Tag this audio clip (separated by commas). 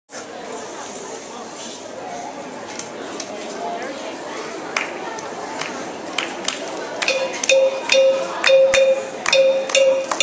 Music, inside a large room or hall, Musical instrument, Speech